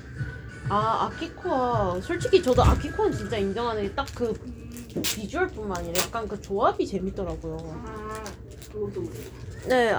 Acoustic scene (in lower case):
cafe